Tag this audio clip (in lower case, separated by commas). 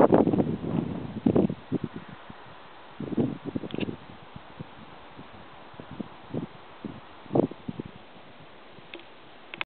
wind noise (microphone), wind